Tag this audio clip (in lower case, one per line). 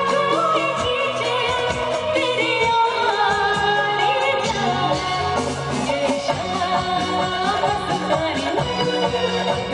music
female singing